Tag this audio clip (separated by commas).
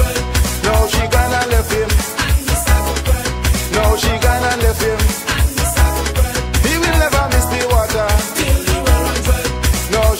Music